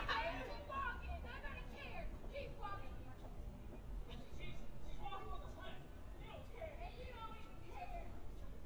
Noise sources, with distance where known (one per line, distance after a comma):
person or small group shouting, near